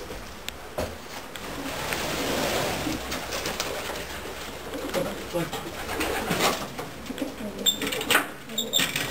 Doors sliding open and closing then a pigeon coos